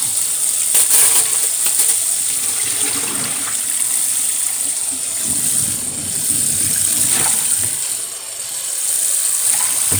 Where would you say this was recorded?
in a kitchen